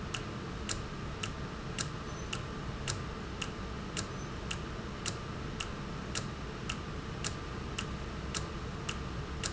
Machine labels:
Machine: valve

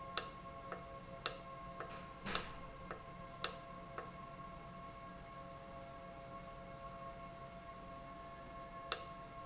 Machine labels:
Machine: valve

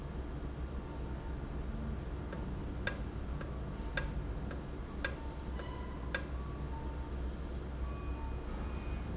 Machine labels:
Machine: valve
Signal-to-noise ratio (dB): -6 dB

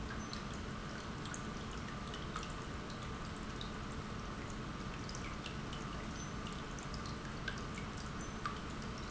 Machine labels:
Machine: pump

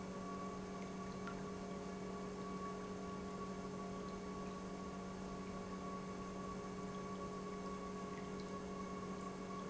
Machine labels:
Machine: pump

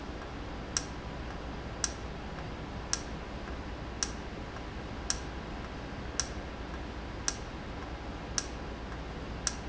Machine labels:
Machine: valve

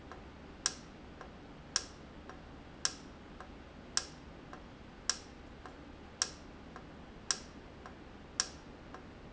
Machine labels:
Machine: valve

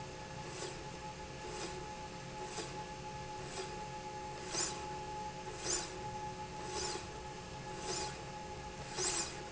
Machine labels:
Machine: slide rail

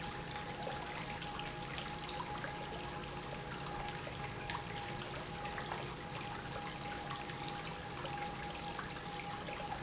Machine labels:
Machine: pump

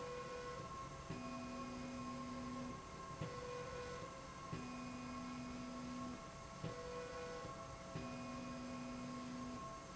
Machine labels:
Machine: slide rail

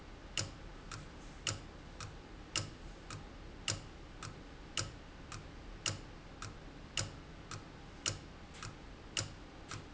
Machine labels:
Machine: valve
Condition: abnormal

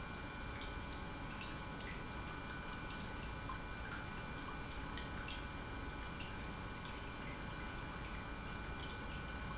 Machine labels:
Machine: pump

